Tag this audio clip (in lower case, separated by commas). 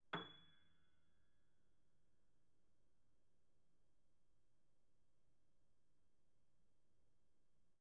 piano, musical instrument, keyboard (musical), music